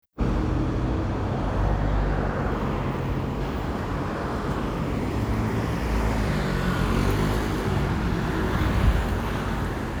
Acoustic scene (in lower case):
street